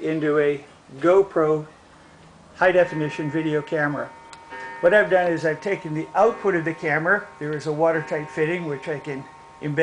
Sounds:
speech

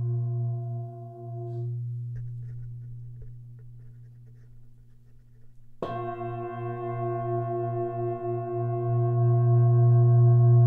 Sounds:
singing bowl
gong

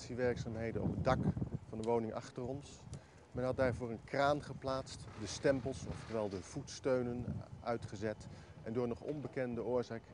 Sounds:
speech

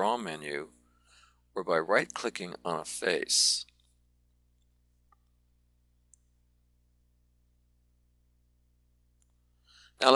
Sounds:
speech

